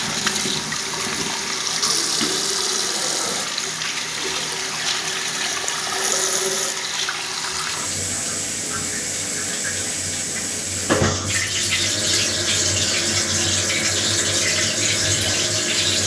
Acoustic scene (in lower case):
restroom